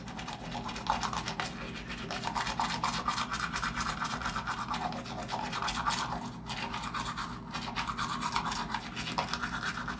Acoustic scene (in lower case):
restroom